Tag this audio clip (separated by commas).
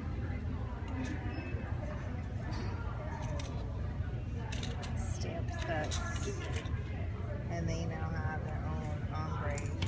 Speech